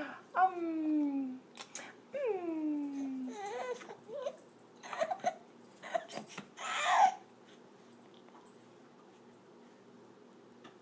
Women cooing followed by crying baby